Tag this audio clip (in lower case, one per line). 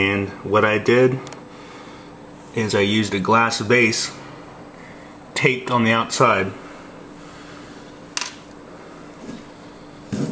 speech